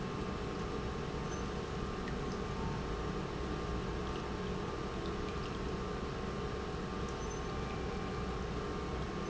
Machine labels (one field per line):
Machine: pump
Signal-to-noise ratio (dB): -6 dB